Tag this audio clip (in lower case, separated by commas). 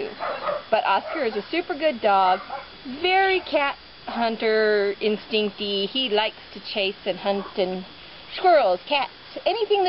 speech, animal, dog, bow-wow, pets